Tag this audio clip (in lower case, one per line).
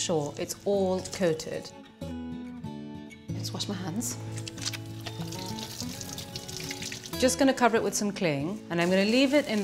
speech
music